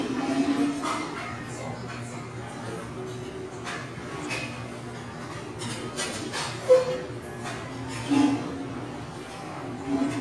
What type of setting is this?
restaurant